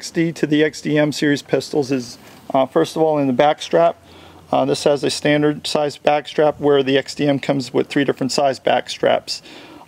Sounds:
Speech

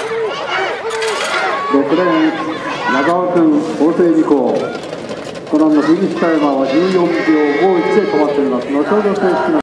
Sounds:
outside, urban or man-made, Speech

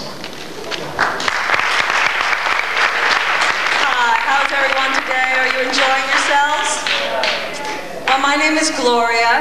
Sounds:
Speech

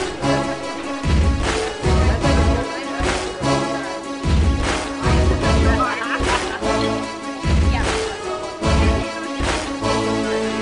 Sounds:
Music, Speech

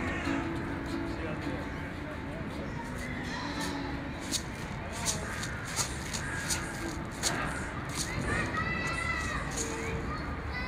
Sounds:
Music, Speech

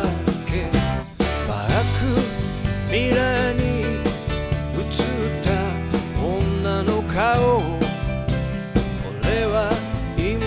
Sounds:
Music

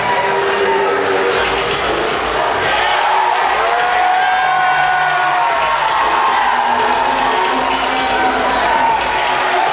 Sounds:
Music

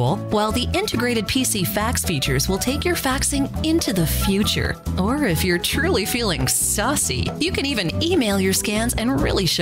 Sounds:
Speech, Music

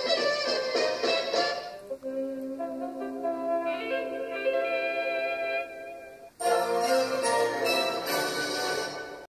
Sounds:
Music

